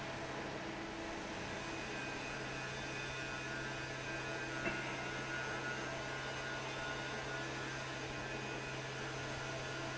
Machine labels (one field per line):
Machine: fan